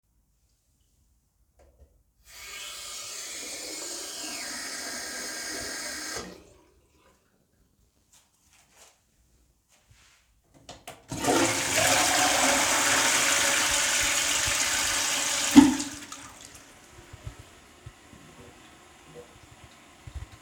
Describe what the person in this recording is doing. I briefly ran the bathroom tap and then flushed the toilet before stepping away.